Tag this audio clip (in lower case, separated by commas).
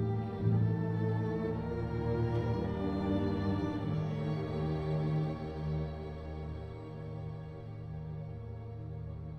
musical instrument, music, fiddle